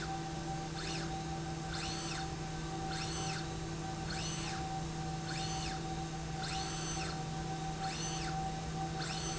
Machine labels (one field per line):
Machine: slide rail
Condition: normal